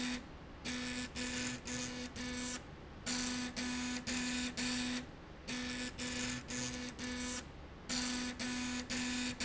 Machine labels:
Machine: slide rail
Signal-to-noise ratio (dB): 6 dB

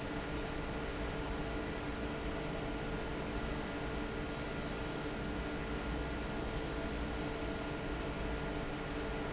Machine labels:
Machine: fan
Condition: normal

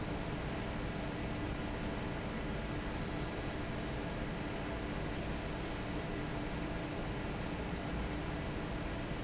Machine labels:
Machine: fan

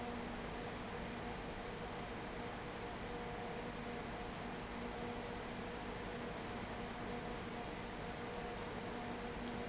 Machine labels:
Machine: fan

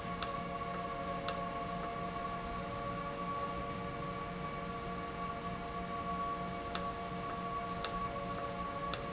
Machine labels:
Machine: valve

